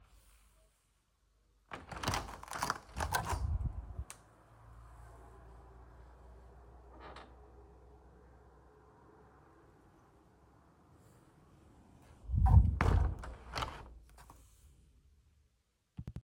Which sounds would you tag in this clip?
window